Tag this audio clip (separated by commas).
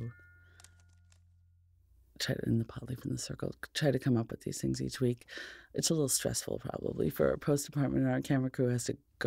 Speech